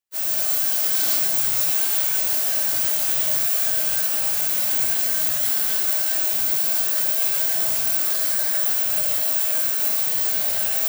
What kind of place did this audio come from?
restroom